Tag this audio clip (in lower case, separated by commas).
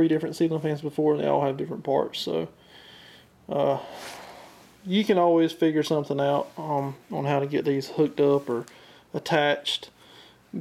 speech